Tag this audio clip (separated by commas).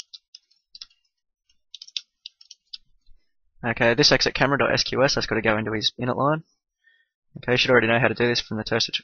Speech